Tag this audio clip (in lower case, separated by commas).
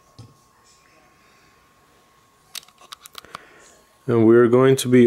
speech